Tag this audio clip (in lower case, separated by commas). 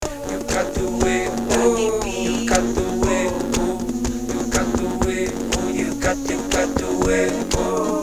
human voice